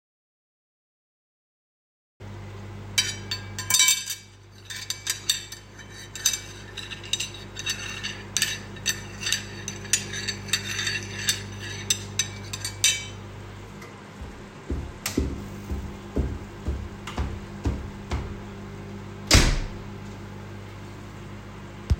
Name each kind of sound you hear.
microwave, cutlery and dishes, footsteps, door